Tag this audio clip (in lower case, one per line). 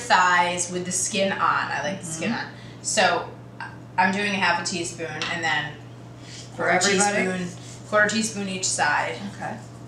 speech